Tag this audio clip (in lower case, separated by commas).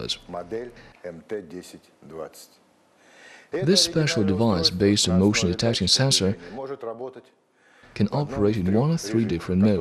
speech